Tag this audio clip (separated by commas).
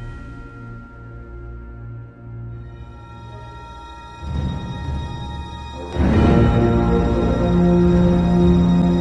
Theme music